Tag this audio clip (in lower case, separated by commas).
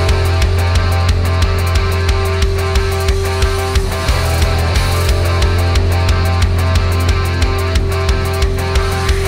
music, theme music